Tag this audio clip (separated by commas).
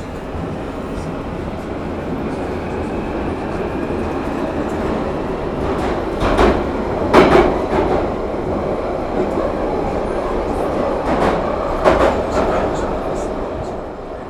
metro, Rail transport, Vehicle